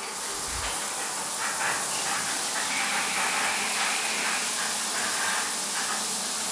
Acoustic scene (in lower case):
restroom